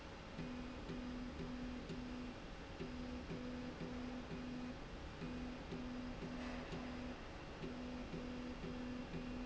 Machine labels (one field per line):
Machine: slide rail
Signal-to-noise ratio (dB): 6 dB